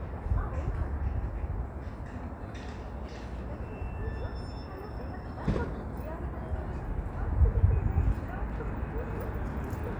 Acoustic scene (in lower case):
residential area